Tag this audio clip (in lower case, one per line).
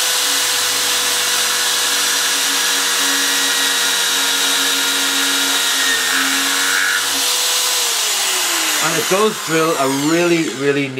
tools
speech